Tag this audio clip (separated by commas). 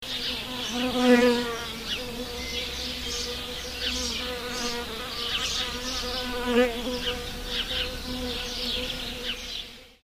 Animal, Wild animals, Insect